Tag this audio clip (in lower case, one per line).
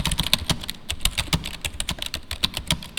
typing
home sounds